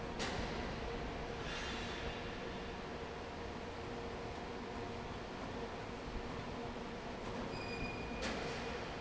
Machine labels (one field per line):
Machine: fan